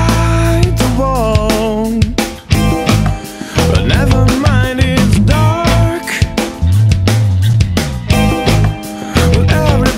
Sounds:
music

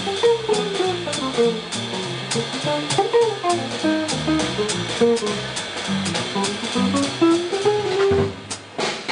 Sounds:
drum
bass guitar
guitar
musical instrument
drum kit
music
percussion

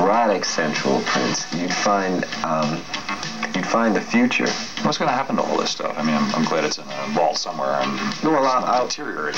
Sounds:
music
speech

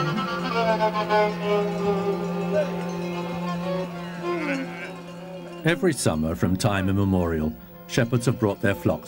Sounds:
speech
music

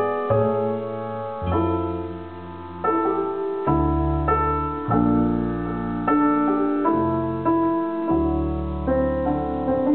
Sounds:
music

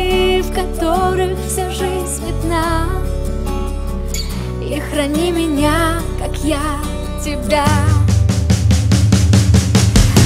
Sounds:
music

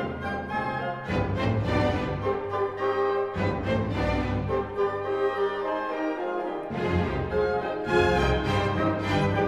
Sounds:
music

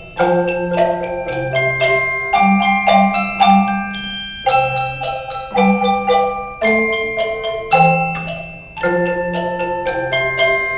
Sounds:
music
tubular bells
wood block
percussion

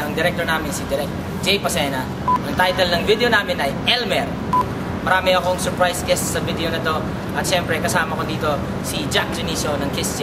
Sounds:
speech

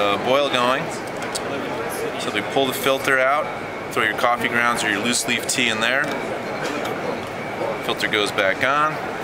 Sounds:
speech

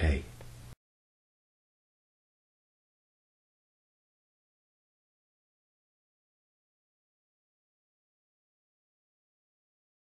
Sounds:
speech

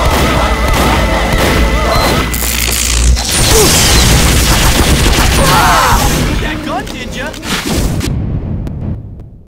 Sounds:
speech
music

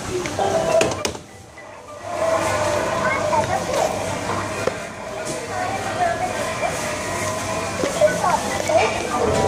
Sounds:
music
speech

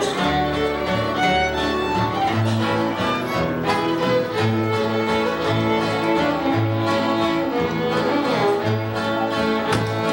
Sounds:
music
musical instrument
fiddle

